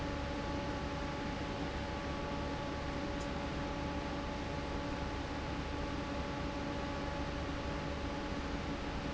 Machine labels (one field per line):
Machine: fan